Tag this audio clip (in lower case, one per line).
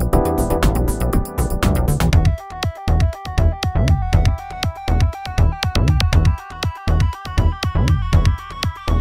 electronica